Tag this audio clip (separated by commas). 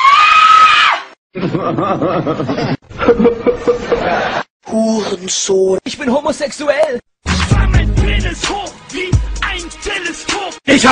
Sound effect, Music, Speech